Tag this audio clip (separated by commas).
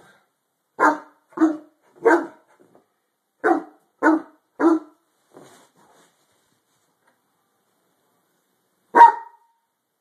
Dog, Domestic animals, Animal, Bark, dog barking, canids